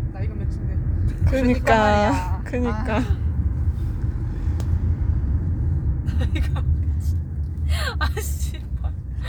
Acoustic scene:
car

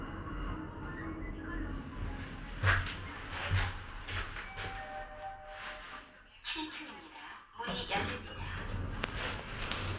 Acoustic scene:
elevator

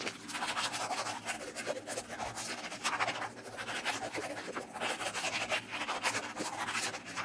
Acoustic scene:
restroom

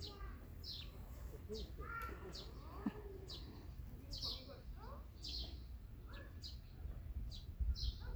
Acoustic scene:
park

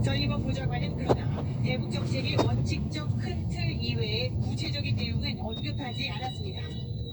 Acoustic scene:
car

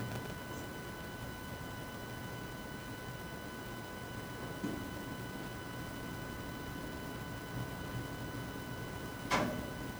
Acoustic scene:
elevator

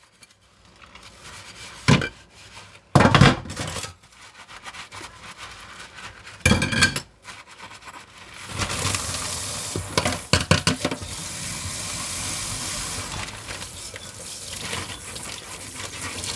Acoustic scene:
kitchen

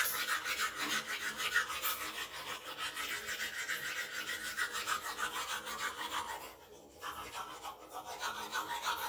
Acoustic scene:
restroom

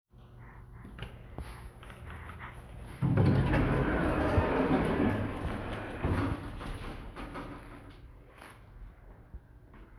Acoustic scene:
elevator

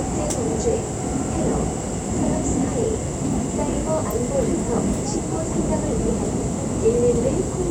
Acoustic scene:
subway train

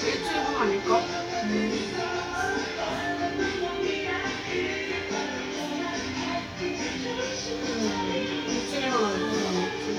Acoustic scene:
restaurant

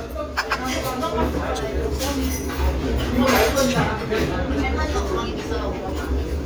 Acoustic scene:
restaurant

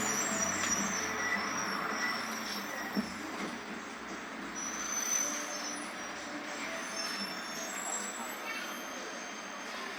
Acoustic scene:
bus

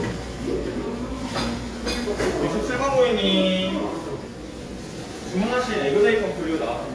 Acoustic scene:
cafe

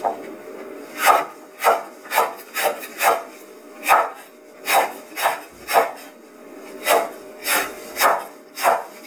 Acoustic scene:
kitchen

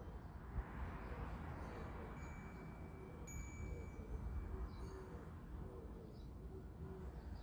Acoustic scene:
residential area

